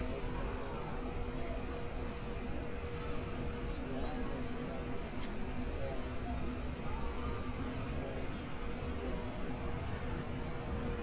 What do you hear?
person or small group talking, person or small group shouting